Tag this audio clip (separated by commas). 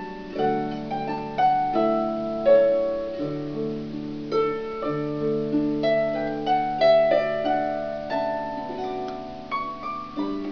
Music, Musical instrument, playing harp, Harp, Plucked string instrument